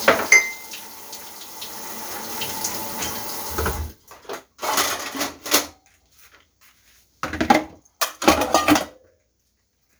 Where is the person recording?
in a kitchen